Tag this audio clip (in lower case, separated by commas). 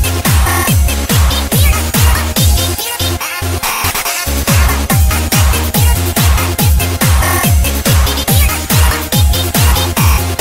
exciting music, music